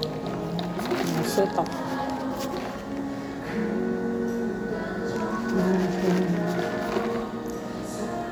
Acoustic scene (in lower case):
cafe